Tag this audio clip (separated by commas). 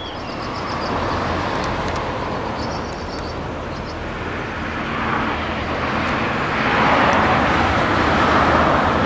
train wagon, Vehicle, Train, Toot, Rail transport